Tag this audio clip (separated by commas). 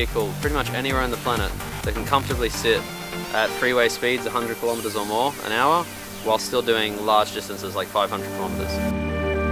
Speech, Music